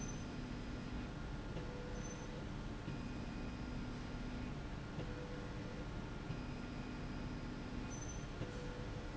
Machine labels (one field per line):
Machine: slide rail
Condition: normal